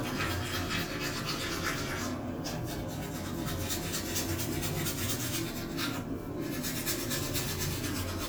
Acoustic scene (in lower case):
restroom